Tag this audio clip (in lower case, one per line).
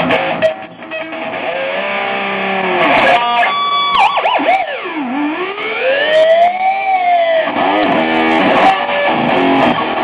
sound effect